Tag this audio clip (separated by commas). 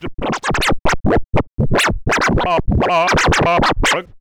Music, Scratching (performance technique), Musical instrument